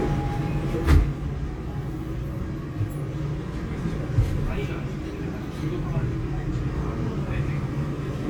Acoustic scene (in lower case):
subway train